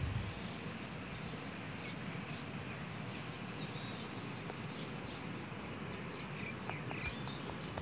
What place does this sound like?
park